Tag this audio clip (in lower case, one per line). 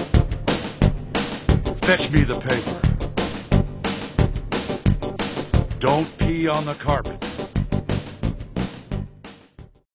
music
speech